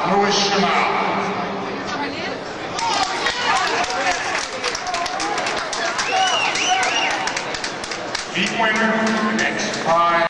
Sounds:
speech, outside, urban or man-made

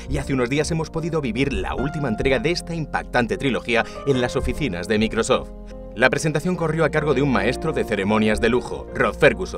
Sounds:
music, speech

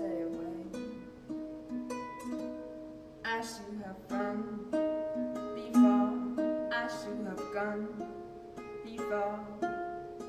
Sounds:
music

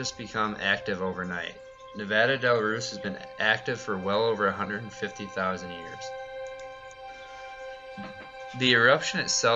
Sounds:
music, speech

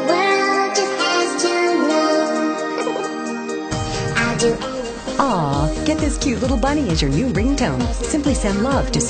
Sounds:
ringtone, music, song

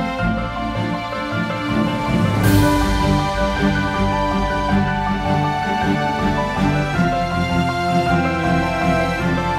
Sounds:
music

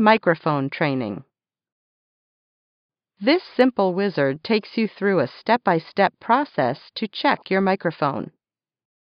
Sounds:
speech, narration, woman speaking

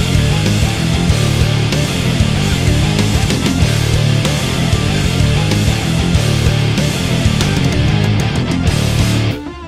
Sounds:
music

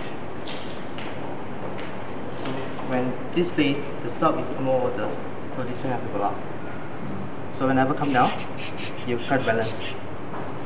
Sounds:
speech

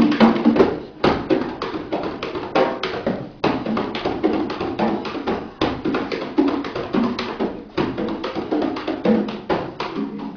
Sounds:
drum, inside a large room or hall, musical instrument, music

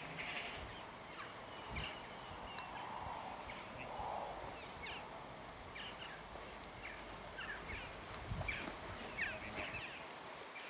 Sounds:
pets, speech

